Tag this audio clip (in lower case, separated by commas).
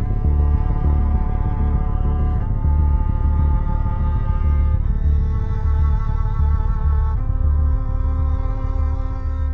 music